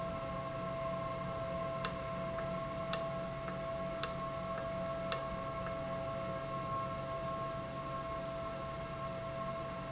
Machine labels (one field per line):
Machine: valve